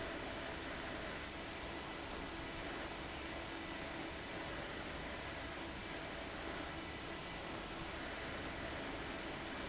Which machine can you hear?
fan